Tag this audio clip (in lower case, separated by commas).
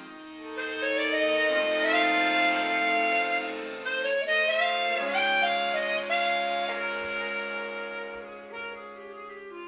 music, saxophone